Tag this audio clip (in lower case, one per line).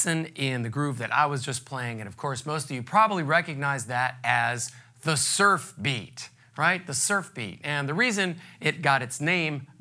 speech